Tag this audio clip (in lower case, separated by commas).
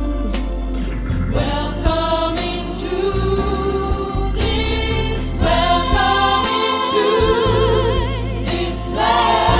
singing, christmas music, choir, gospel music, music